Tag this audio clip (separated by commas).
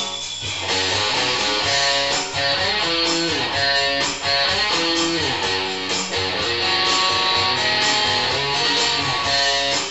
Musical instrument, Acoustic guitar, Plucked string instrument, Guitar, Strum, Music